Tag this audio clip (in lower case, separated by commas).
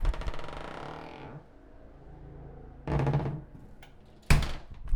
domestic sounds, slam, door